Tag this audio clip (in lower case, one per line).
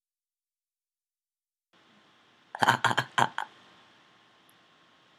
human voice
laughter